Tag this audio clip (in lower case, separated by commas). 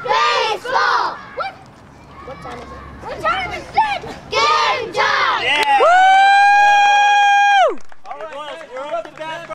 speech